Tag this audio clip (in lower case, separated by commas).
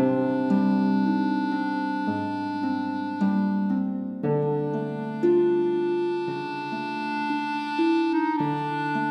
music, tender music